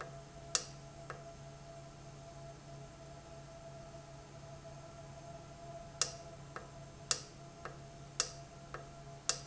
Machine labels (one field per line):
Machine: valve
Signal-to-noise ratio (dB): 6 dB